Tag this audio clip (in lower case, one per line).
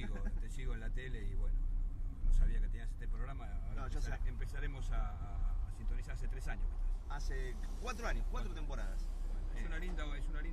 speech